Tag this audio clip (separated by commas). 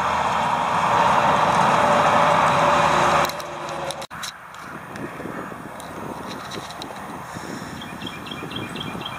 Animal